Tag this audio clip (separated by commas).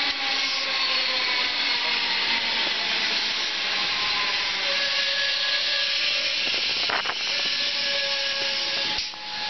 train wagon, Vehicle, Rail transport, Train